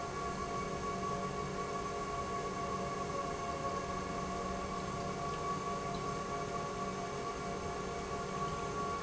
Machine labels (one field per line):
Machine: pump